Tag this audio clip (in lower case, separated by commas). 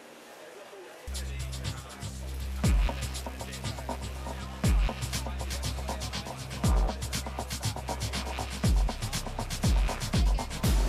speech, music